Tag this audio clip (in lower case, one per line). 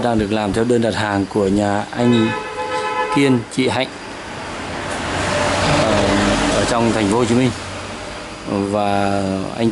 speech